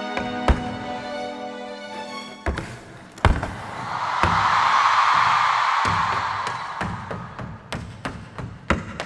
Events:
[0.00, 2.43] music
[0.11, 0.25] tap dance
[0.43, 0.63] tap dance
[2.42, 2.75] tap dance
[3.21, 3.55] tap dance
[3.23, 7.70] cheering
[4.22, 4.46] tap dance
[5.13, 5.39] tap dance
[5.82, 6.65] tap dance
[6.79, 6.93] tap dance
[7.05, 7.19] tap dance
[7.37, 7.54] tap dance
[7.71, 7.92] tap dance
[8.04, 8.21] tap dance
[8.37, 8.55] tap dance
[8.69, 8.84] tap dance
[8.97, 9.05] tap dance

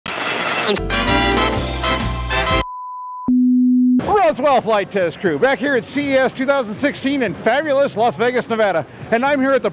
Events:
[0.03, 0.64] white noise
[0.03, 0.68] music
[0.62, 0.75] human voice
[0.87, 2.60] music
[2.59, 3.25] bleep
[3.25, 3.96] sine wave
[3.95, 9.72] television
[3.96, 9.72] mechanisms
[4.04, 8.83] male speech
[8.83, 9.07] breathing
[9.10, 9.72] male speech

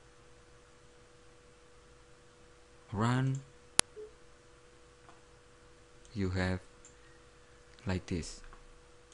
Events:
[0.00, 9.13] mechanisms
[2.87, 3.45] man speaking
[3.21, 3.44] clicking
[3.76, 3.83] tick
[3.94, 4.07] brief tone
[5.03, 5.16] generic impact sounds
[5.98, 6.13] clicking
[6.10, 6.65] man speaking
[6.82, 6.95] clicking
[7.71, 7.85] clicking
[7.79, 8.40] man speaking
[8.40, 8.58] clicking

